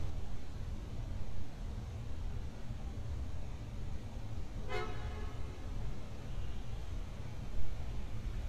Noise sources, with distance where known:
background noise

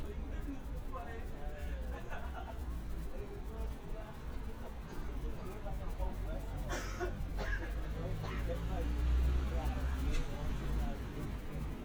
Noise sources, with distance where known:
medium-sounding engine, near; person or small group talking, near

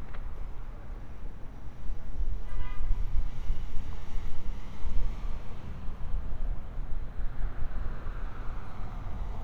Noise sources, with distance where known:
car horn, far

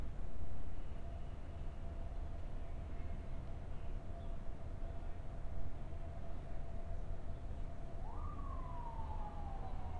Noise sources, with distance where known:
siren, far

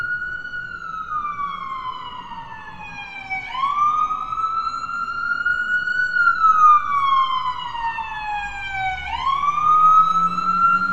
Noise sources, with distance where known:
siren, near

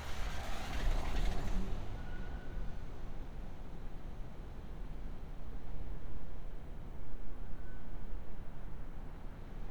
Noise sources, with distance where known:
engine of unclear size

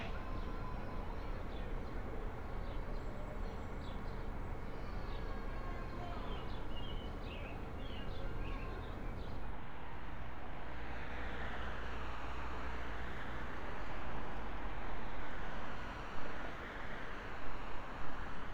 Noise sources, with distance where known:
medium-sounding engine

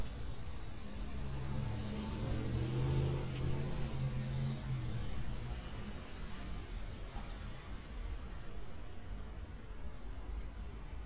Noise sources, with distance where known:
engine of unclear size, far

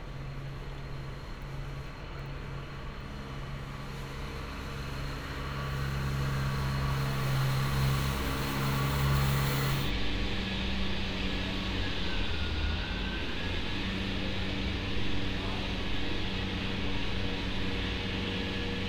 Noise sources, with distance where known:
large-sounding engine

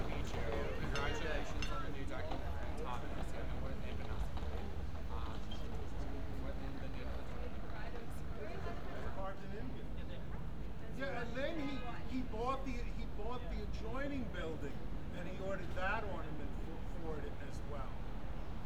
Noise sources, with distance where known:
person or small group talking, near

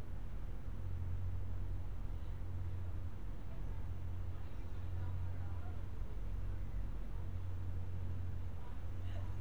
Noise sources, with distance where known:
background noise

